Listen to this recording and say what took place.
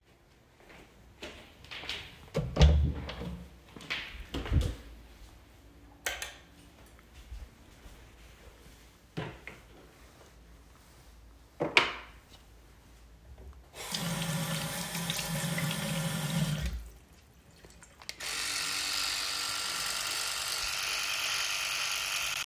I walked to the bathroom, opened the door, and turned on the light switch. I walked to the sink, opened a drawer, and took out my electrical toothbrush. I turned on the sink to wash the toothbrush, then turned it off and began brushing my teeth.